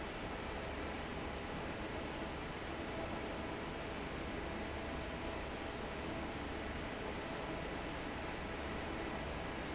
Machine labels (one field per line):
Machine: fan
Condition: normal